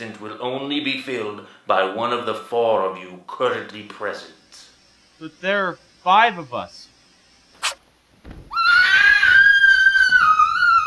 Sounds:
inside a large room or hall, speech

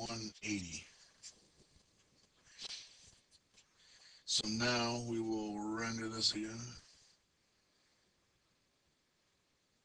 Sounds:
speech

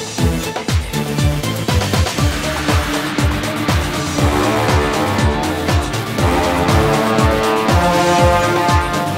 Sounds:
angry music

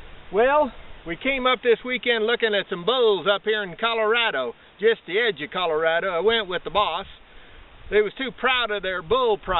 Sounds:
speech

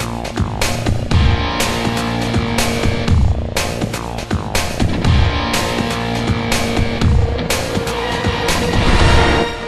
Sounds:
sound effect, music

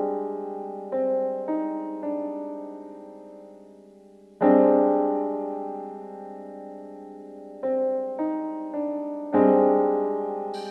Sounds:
electric piano, music

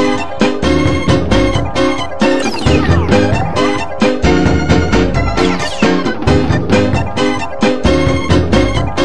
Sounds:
soundtrack music, music

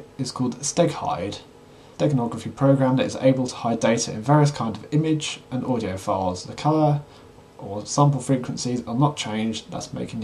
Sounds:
speech

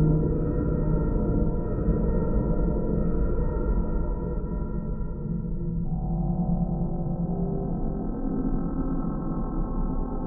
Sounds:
music, soundtrack music, video game music

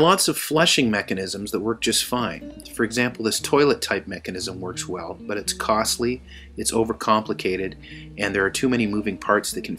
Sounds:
music, speech

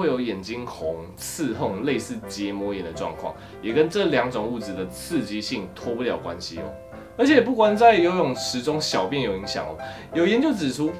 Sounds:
striking pool

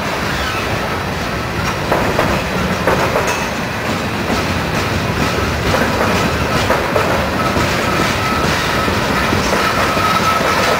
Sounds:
rail transport, train, vehicle, train wagon

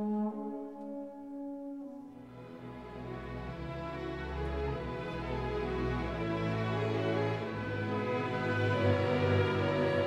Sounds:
music, french horn

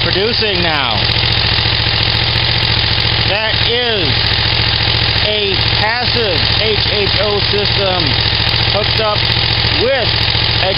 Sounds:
speech, motorcycle, outside, rural or natural, vehicle

